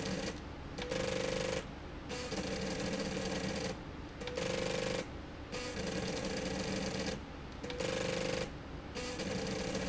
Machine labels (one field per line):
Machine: slide rail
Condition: abnormal